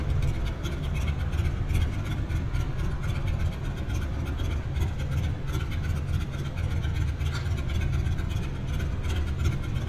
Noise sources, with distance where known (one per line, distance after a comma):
medium-sounding engine, near